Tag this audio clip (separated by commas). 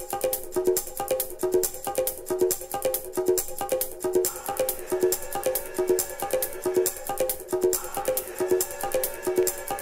Music